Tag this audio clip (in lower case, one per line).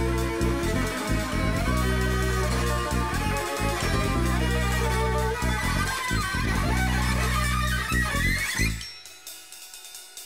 music